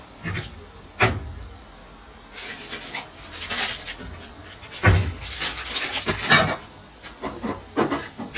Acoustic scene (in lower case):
kitchen